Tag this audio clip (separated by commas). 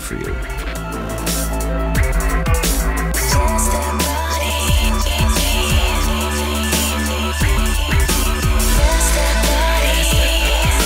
Drum and bass